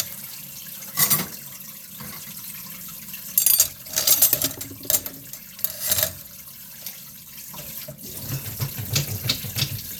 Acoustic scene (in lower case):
kitchen